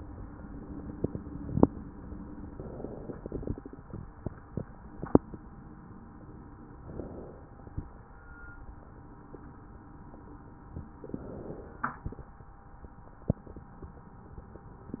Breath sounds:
2.41-3.90 s: inhalation
6.77-8.26 s: inhalation
10.95-12.44 s: inhalation

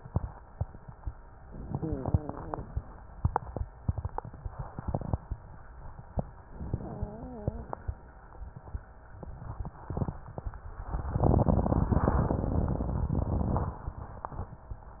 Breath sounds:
1.79-2.66 s: wheeze
6.57-7.74 s: inhalation
6.73-7.72 s: wheeze

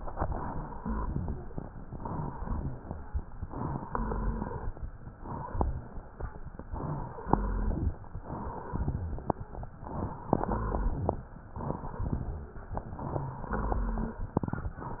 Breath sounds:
0.00-0.76 s: inhalation
0.76-1.52 s: exhalation
0.76-1.52 s: rhonchi
1.61-2.37 s: inhalation
2.37-3.23 s: exhalation
2.37-3.23 s: rhonchi
2.39-3.21 s: exhalation
2.39-3.21 s: rhonchi
3.43-3.89 s: inhalation
3.93-4.67 s: exhalation
3.93-4.67 s: rhonchi
6.66-7.27 s: rhonchi
6.70-7.31 s: inhalation
8.78-9.47 s: exhalation
8.78-9.47 s: rhonchi
9.81-10.32 s: inhalation
10.36-11.27 s: exhalation
10.36-11.27 s: rhonchi
11.57-12.06 s: inhalation
12.09-12.57 s: exhalation
12.09-12.57 s: rhonchi
12.75-13.48 s: inhalation
13.07-13.48 s: wheeze
13.53-14.22 s: exhalation
13.53-14.22 s: rhonchi

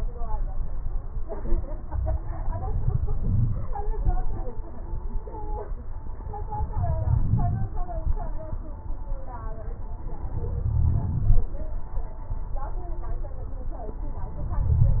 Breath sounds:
2.68-3.67 s: inhalation
2.68-3.67 s: crackles
6.62-7.75 s: inhalation
10.39-11.51 s: inhalation
10.39-11.51 s: crackles
14.35-15.00 s: inhalation
14.35-15.00 s: crackles

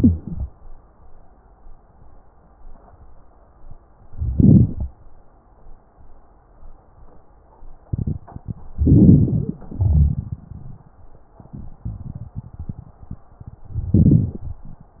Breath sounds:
0.00-0.50 s: inhalation
4.17-4.87 s: inhalation
4.17-4.87 s: crackles
8.75-9.60 s: inhalation
9.69-11.05 s: exhalation
13.73-14.70 s: inhalation

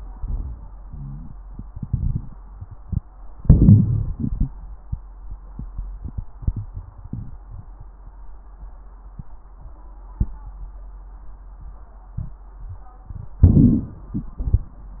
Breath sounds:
3.36-4.13 s: inhalation
3.36-4.13 s: crackles
4.14-4.57 s: exhalation
4.14-4.57 s: crackles
13.44-14.12 s: inhalation
13.44-14.12 s: crackles
14.18-14.75 s: exhalation
14.18-14.75 s: crackles

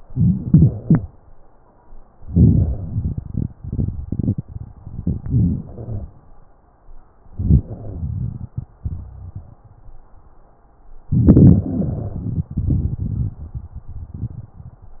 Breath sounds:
2.23-2.74 s: inhalation
2.73-4.85 s: exhalation
4.87-5.66 s: inhalation
4.87-5.66 s: crackles
5.68-6.11 s: exhalation
5.68-6.11 s: wheeze
7.32-7.69 s: inhalation
7.67-8.50 s: wheeze
7.72-9.67 s: exhalation
8.86-9.59 s: wheeze
11.09-11.65 s: inhalation
11.67-12.33 s: wheeze
11.67-15.00 s: exhalation

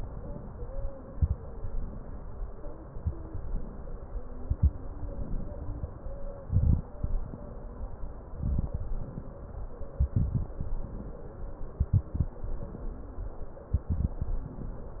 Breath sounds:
0.00-0.83 s: inhalation
0.97-1.33 s: exhalation
0.97-1.33 s: crackles
1.39-2.89 s: inhalation
2.90-3.27 s: exhalation
2.90-3.27 s: crackles
3.33-4.33 s: inhalation
4.41-4.77 s: exhalation
4.41-4.77 s: crackles
4.89-6.36 s: inhalation
6.51-6.88 s: exhalation
6.51-6.88 s: crackles
6.96-8.34 s: inhalation
8.45-8.82 s: exhalation
8.45-8.82 s: crackles
8.97-9.89 s: inhalation
9.99-10.59 s: exhalation
9.99-10.59 s: crackles
10.81-11.73 s: inhalation
11.80-12.31 s: exhalation
11.80-12.31 s: crackles
12.37-13.67 s: inhalation
13.74-14.39 s: exhalation
13.74-14.39 s: crackles
14.55-15.00 s: inhalation

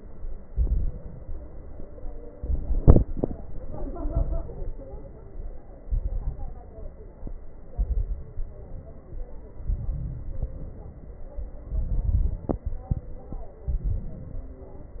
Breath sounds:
0.42-1.35 s: inhalation
0.42-1.35 s: crackles
1.39-2.12 s: exhalation
2.35-3.29 s: inhalation
2.35-3.29 s: crackles
3.82-4.75 s: inhalation
3.82-4.75 s: crackles
5.89-6.82 s: inhalation
5.89-6.82 s: crackles
7.75-8.47 s: inhalation
7.75-8.47 s: crackles
8.49-9.23 s: exhalation
9.61-10.51 s: inhalation
9.61-10.51 s: crackles
10.56-11.46 s: exhalation
11.65-12.54 s: inhalation
11.65-12.54 s: crackles
12.69-13.59 s: exhalation
13.70-14.48 s: inhalation
13.70-14.48 s: crackles

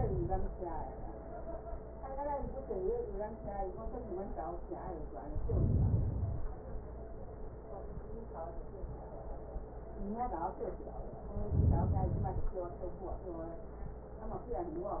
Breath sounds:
5.29-6.64 s: inhalation
11.30-12.77 s: inhalation

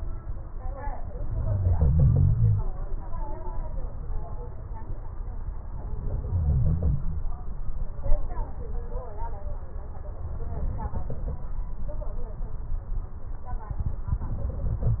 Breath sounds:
1.41-2.62 s: inhalation
6.25-7.29 s: inhalation

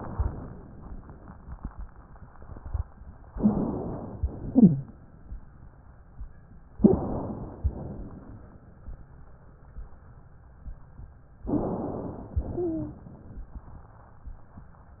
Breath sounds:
3.32-3.80 s: wheeze
3.32-4.21 s: inhalation
4.23-5.12 s: exhalation
4.44-4.92 s: wheeze
6.75-7.65 s: inhalation
6.77-7.08 s: wheeze
7.72-8.62 s: exhalation
11.44-12.33 s: inhalation
12.41-13.30 s: exhalation
12.50-13.02 s: wheeze

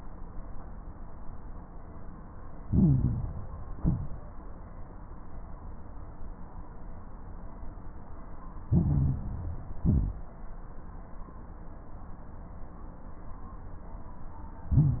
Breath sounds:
2.62-3.53 s: inhalation
2.62-3.53 s: crackles
3.70-4.41 s: exhalation
3.70-4.41 s: crackles
8.70-9.80 s: inhalation
8.70-9.80 s: crackles
9.80-10.49 s: exhalation
9.80-10.49 s: crackles
14.69-15.00 s: inhalation
14.69-15.00 s: crackles

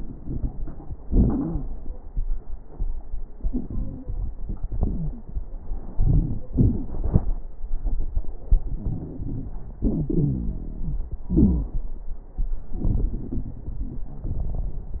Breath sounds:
1.06-1.62 s: wheeze
4.75-5.29 s: wheeze
8.46-9.77 s: inhalation
8.46-9.77 s: crackles
9.82-11.20 s: exhalation
9.82-11.20 s: wheeze

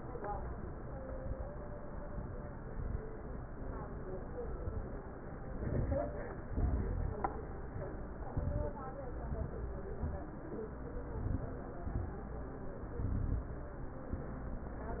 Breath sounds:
5.45-6.12 s: inhalation
6.48-7.22 s: exhalation
8.30-8.87 s: inhalation
9.16-9.73 s: exhalation
10.95-11.51 s: inhalation
11.74-12.31 s: exhalation
12.94-13.51 s: inhalation

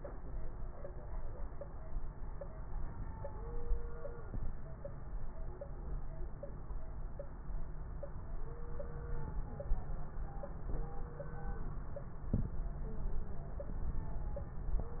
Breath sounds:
4.28-4.58 s: inhalation
12.34-12.59 s: inhalation

